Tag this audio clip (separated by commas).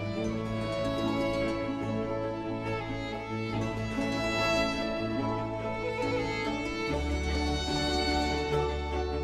fiddle, Musical instrument, Music, Orchestra